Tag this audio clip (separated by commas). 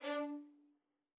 Music, Bowed string instrument, Musical instrument